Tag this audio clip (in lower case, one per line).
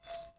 glass